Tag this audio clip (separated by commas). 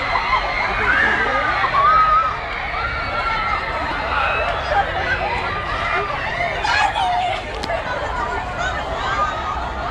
Speech